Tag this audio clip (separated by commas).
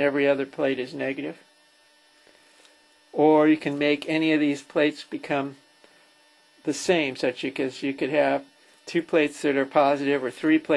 Speech